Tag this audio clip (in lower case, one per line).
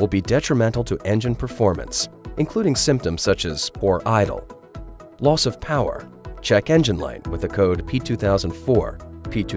speech
music